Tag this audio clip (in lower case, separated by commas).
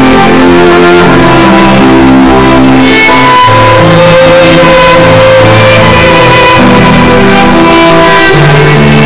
musical instrument, music, violin